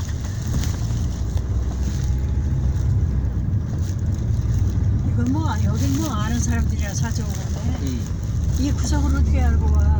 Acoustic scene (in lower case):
car